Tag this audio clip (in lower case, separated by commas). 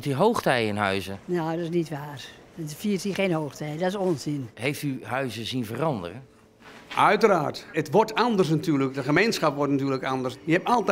speech